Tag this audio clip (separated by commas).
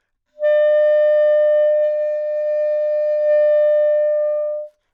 Wind instrument, Music, Musical instrument